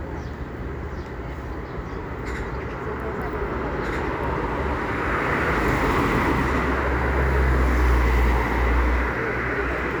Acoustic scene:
residential area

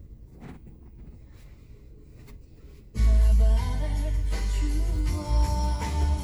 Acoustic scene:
car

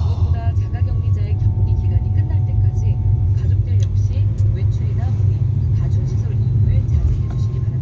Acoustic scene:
car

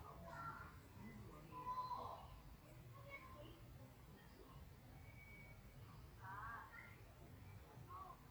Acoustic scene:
park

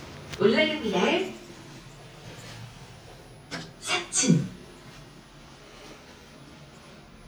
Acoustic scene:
elevator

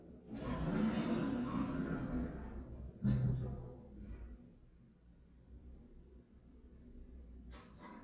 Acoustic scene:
elevator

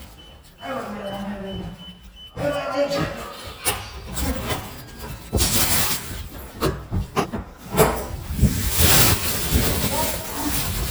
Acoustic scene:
elevator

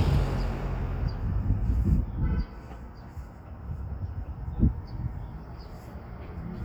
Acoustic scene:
street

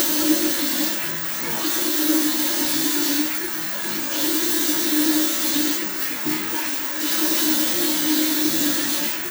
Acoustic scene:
restroom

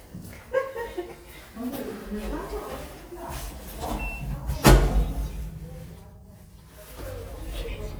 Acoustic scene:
elevator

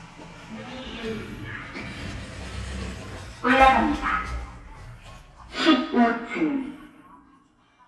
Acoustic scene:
elevator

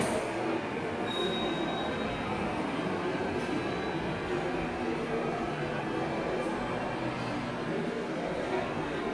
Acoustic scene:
subway station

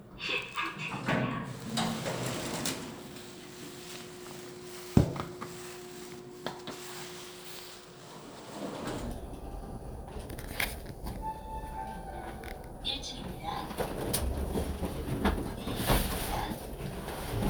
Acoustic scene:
elevator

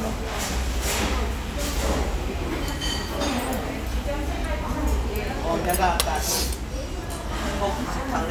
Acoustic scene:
restaurant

